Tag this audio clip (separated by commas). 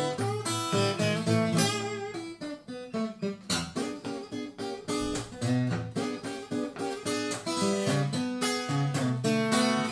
Music, Musical instrument, Acoustic guitar, Plucked string instrument, Guitar